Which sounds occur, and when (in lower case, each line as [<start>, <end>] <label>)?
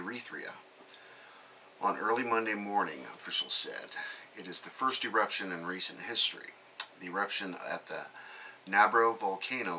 [0.00, 0.58] male speech
[0.00, 9.75] mechanisms
[0.81, 1.78] breathing
[1.82, 3.89] male speech
[3.89, 4.36] breathing
[4.31, 6.50] male speech
[6.81, 8.15] male speech
[8.19, 8.66] breathing
[8.65, 9.75] male speech